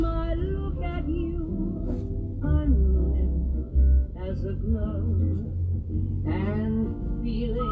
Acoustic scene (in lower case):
car